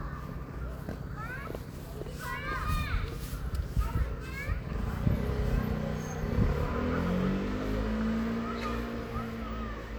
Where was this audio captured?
in a residential area